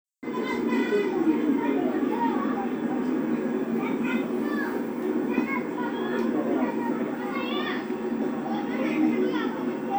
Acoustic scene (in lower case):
park